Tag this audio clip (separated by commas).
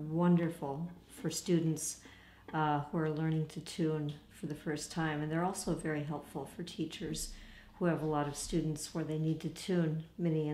Speech